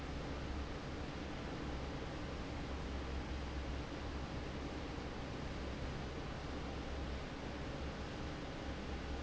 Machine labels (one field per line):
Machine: fan